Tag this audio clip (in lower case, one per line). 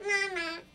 human voice
kid speaking
speech